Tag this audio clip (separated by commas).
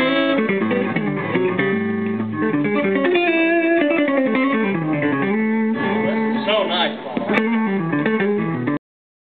Acoustic guitar, Plucked string instrument, Musical instrument, Speech, Guitar, Strum, Music